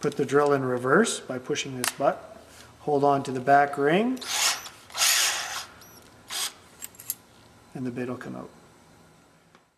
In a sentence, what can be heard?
A man speaking followed by drilling and more speech